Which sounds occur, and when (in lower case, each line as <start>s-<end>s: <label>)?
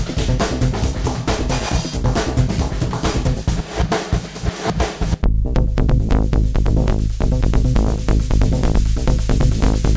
0.0s-9.9s: music